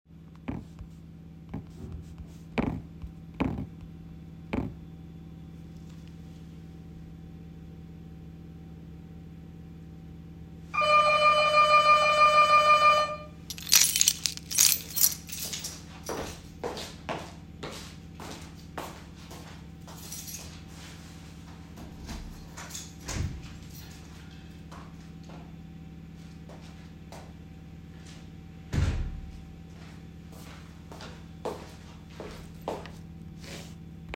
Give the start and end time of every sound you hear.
10.6s-13.3s: bell ringing
13.5s-16.0s: keys
16.0s-21.0s: footsteps
20.0s-20.7s: keys
22.0s-23.5s: door
23.4s-24.0s: keys
24.5s-28.1s: footsteps
28.6s-29.5s: door
30.2s-33.9s: footsteps

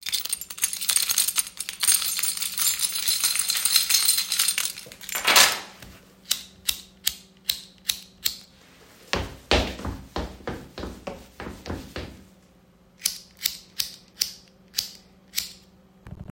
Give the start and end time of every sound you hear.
0.0s-5.7s: keys
9.1s-12.1s: footsteps

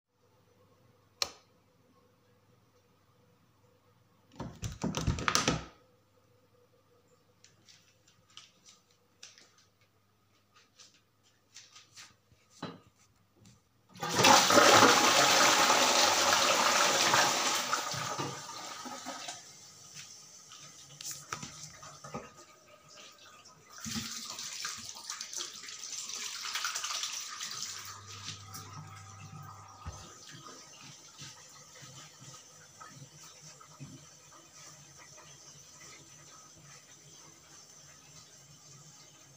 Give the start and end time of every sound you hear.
1.1s-1.5s: light switch
4.3s-5.8s: door
13.9s-19.4s: toilet flushing
23.8s-28.4s: running water

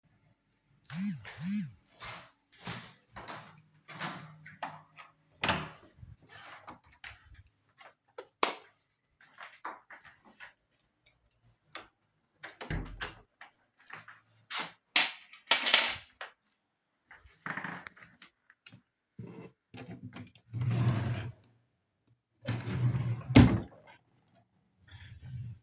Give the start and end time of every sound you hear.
0.8s-1.8s: phone ringing
2.0s-4.3s: footsteps
5.3s-5.9s: door
8.2s-8.8s: light switch
12.3s-13.6s: door
13.9s-14.2s: keys
14.8s-16.2s: keys
20.5s-21.5s: wardrobe or drawer
22.4s-23.7s: wardrobe or drawer

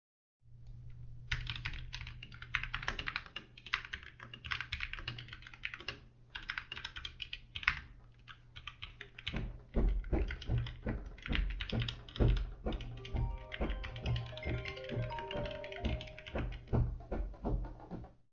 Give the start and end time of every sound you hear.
1.3s-17.0s: keyboard typing
9.2s-18.3s: footsteps
12.7s-16.6s: phone ringing

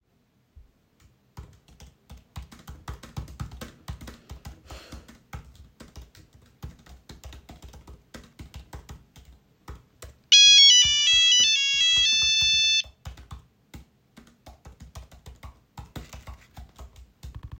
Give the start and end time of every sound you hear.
1.1s-17.6s: keyboard typing
10.3s-12.9s: phone ringing

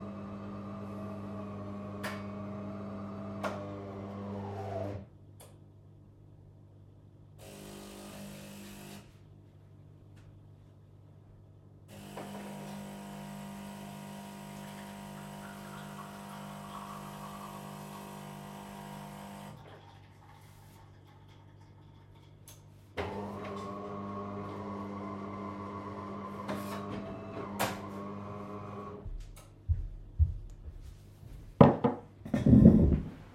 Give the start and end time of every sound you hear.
0.0s-5.6s: coffee machine
7.4s-9.3s: coffee machine
11.9s-19.8s: coffee machine
22.9s-29.5s: coffee machine
29.6s-31.4s: footsteps

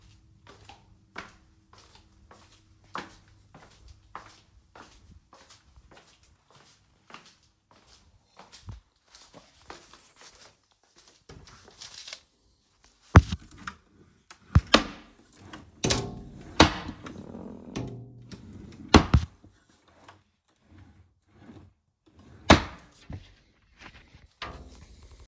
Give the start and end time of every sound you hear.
0.3s-12.3s: footsteps
13.0s-13.8s: wardrobe or drawer
14.5s-15.2s: wardrobe or drawer
15.8s-17.1s: wardrobe or drawer
17.7s-18.4s: wardrobe or drawer
18.8s-19.4s: wardrobe or drawer
22.3s-23.3s: wardrobe or drawer

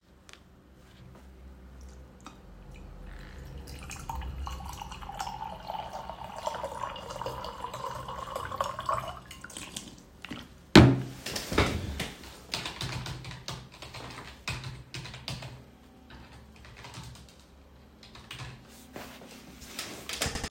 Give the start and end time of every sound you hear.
2.2s-10.7s: running water
12.4s-20.5s: keyboard typing

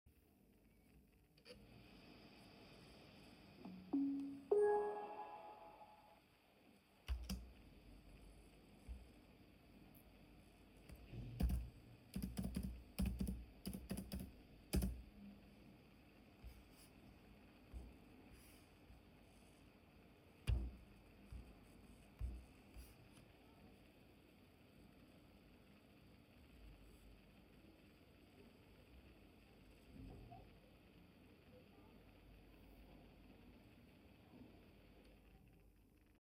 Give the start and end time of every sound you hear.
6.8s-7.7s: keyboard typing
11.1s-15.3s: keyboard typing

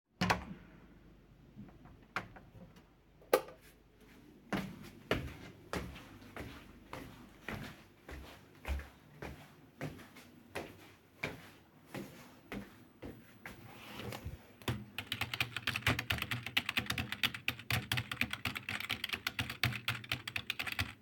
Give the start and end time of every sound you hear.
0.0s-0.6s: door
2.1s-2.3s: door
3.3s-3.6s: light switch
4.4s-13.7s: footsteps
14.9s-21.0s: keyboard typing

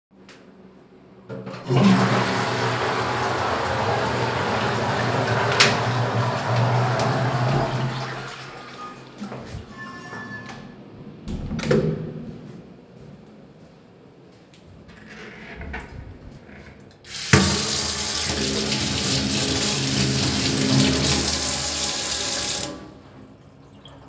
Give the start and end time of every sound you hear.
1.0s-9.2s: toilet flushing
11.2s-12.3s: door
17.1s-22.8s: running water

